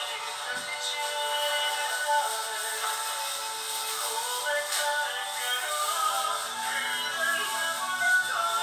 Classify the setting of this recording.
crowded indoor space